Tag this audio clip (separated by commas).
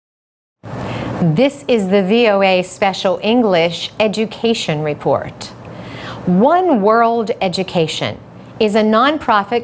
Speech